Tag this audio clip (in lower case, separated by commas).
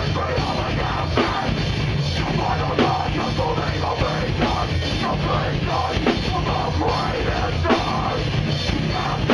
music, bass drum, drum kit, drum, musical instrument, singing